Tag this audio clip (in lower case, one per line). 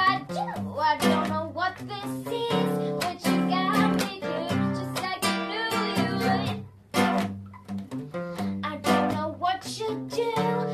music
female singing